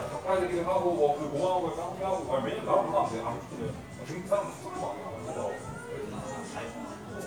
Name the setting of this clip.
crowded indoor space